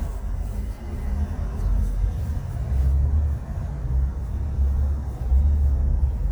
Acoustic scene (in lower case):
car